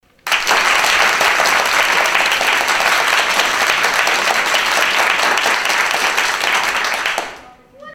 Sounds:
Human group actions, Applause

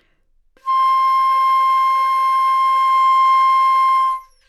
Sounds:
Wind instrument, Musical instrument, Music

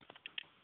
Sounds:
Alarm, Telephone

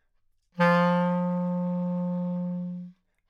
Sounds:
Musical instrument, Wind instrument, Music

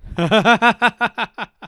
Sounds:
Human voice, Laughter

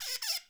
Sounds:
Squeak

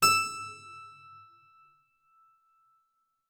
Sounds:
Musical instrument, Keyboard (musical), Music

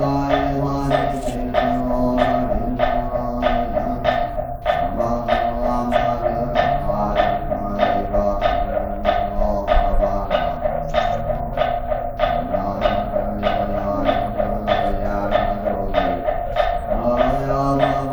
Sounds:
Human voice, Singing

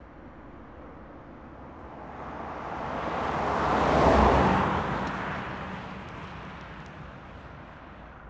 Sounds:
Car, Vehicle, Motor vehicle (road), Car passing by

